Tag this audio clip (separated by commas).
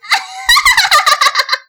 Human voice, Laughter